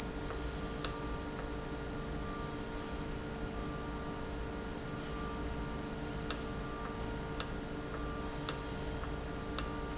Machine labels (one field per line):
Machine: valve